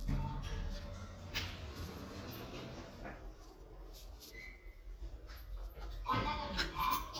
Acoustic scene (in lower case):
elevator